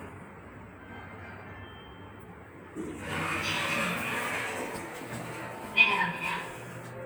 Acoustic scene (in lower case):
elevator